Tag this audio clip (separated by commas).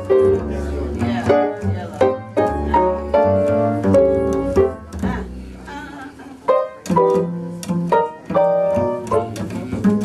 Music, Speech